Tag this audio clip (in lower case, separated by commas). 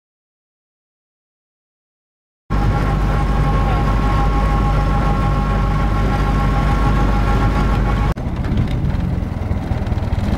truck, vehicle